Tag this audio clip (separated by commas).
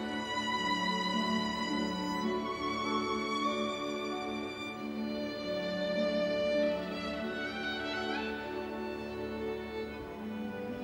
Musical instrument, Music, Violin